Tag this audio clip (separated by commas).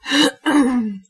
Cough, Respiratory sounds